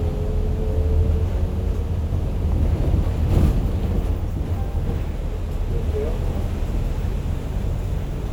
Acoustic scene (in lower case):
bus